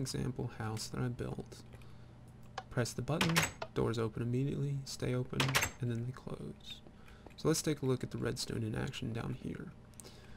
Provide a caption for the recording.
A man is speaking followed by a door opening